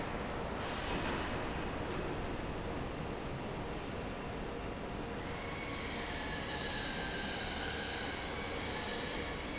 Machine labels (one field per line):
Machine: fan